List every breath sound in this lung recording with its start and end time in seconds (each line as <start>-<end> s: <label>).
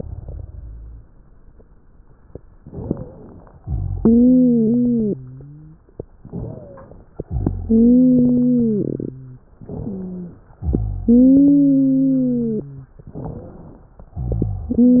2.64-3.57 s: inhalation
2.64-3.57 s: wheeze
3.64-5.84 s: exhalation
3.64-5.84 s: wheeze
6.19-7.01 s: inhalation
6.19-7.01 s: wheeze
7.29-9.49 s: exhalation
7.29-9.49 s: wheeze
9.68-10.50 s: inhalation
9.68-10.50 s: wheeze
10.62-12.90 s: exhalation
10.62-12.90 s: wheeze
13.15-13.65 s: wheeze
13.15-14.11 s: inhalation
14.15-15.00 s: exhalation
14.15-15.00 s: wheeze